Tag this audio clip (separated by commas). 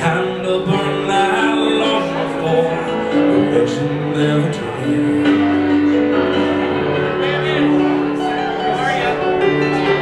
Music, Speech